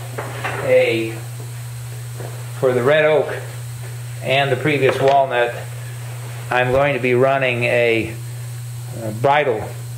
A man speaking as wood clacks